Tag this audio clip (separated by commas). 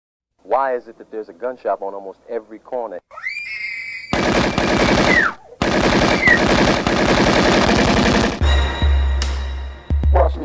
Speech, Music